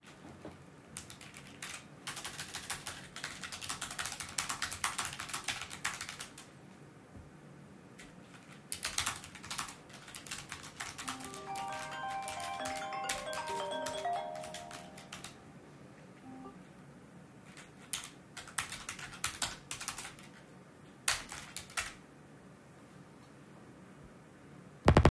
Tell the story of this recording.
I typed on my keyboard and my phone rings during the process, the sounds overlap each other.